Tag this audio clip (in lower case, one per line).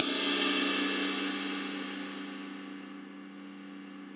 cymbal
music
percussion
musical instrument
crash cymbal